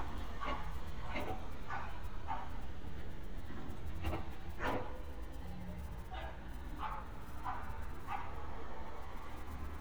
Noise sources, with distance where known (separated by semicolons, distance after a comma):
non-machinery impact, near; dog barking or whining, near